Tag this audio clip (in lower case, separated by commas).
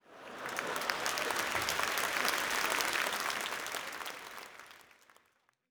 human group actions, crowd, applause